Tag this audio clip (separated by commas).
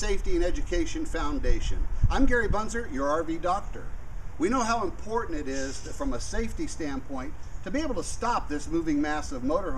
Speech